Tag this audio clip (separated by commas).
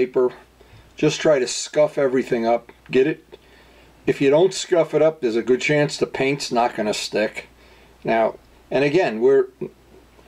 Speech